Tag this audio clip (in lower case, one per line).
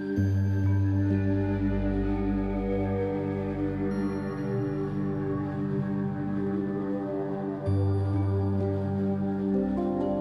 lullaby
music
tender music